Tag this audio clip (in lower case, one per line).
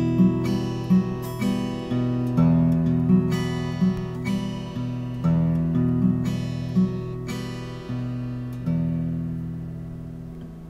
strum
guitar
music
plucked string instrument
musical instrument